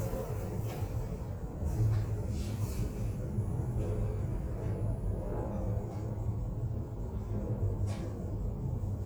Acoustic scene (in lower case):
elevator